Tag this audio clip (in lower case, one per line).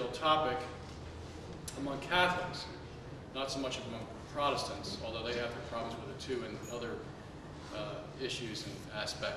speech